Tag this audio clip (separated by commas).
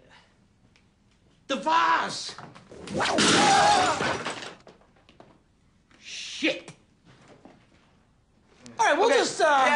Speech